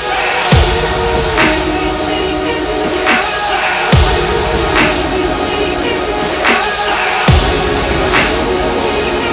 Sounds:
dubstep
music
electronic music

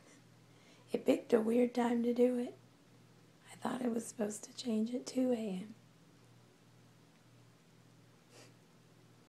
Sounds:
speech

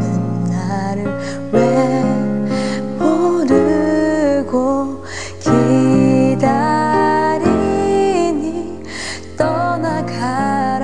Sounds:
female singing
music

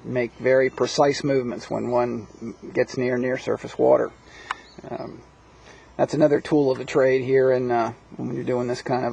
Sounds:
speech

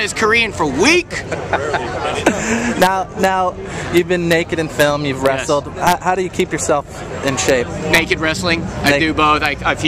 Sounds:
speech

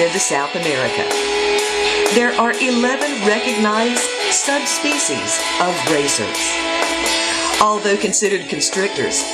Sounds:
speech
music

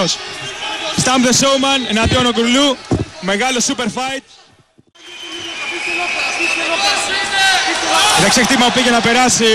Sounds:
speech

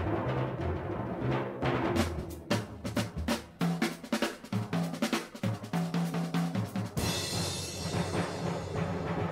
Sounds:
timpani
music

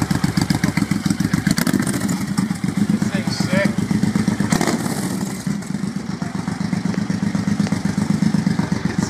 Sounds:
vehicle
speech

